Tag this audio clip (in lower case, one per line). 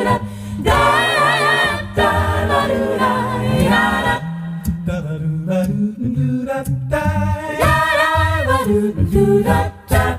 singing
a capella
vocal music
music